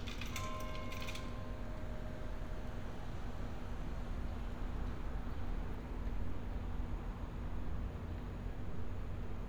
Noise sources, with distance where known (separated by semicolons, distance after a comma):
background noise